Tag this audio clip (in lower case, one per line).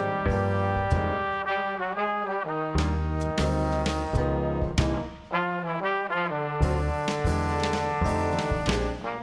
music
orchestra